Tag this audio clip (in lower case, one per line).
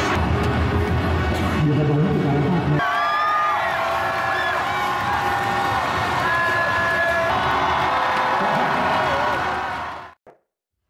people cheering